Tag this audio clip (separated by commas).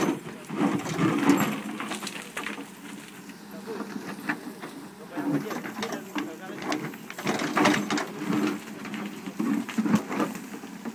Speech